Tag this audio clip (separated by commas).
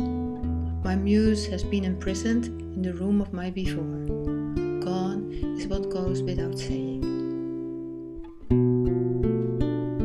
Speech, Music